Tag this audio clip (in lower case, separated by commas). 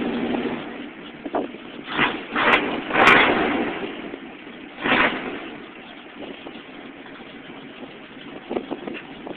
vehicle